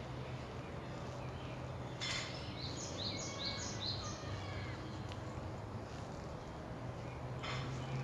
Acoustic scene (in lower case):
residential area